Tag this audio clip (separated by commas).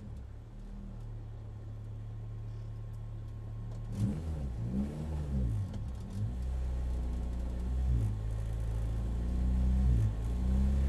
Vehicle, Car, Motor vehicle (road)